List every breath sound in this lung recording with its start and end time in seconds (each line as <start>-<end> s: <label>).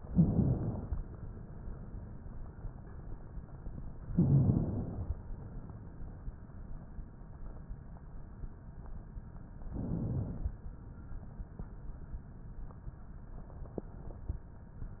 0.02-0.91 s: inhalation
4.16-5.05 s: inhalation
9.68-10.57 s: inhalation